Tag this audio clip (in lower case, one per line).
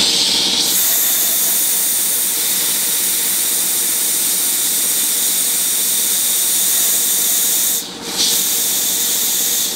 tools